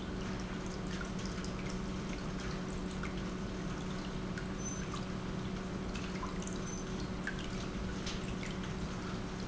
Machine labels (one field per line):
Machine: pump